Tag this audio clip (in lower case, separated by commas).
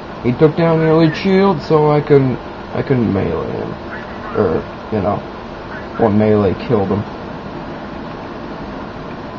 speech